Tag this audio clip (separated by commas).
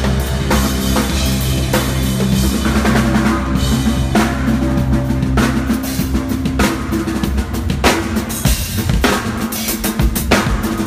Musical instrument, Cymbal, Drum, Rimshot, Rock music, Music, Drum kit